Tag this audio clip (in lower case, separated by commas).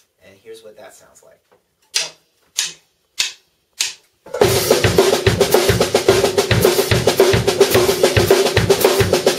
hi-hat, cymbal